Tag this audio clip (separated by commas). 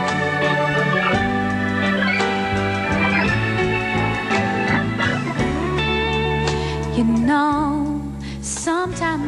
Organ, Hammond organ